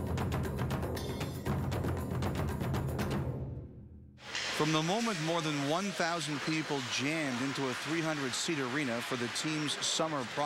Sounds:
music, speech

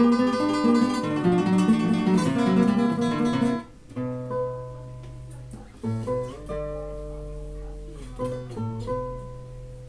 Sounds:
strum, acoustic guitar, guitar, musical instrument, music, plucked string instrument

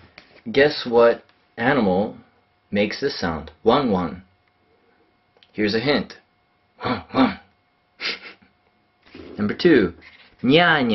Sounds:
speech

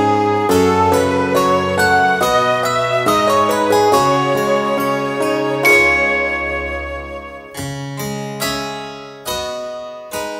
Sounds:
piano, keyboard (musical)

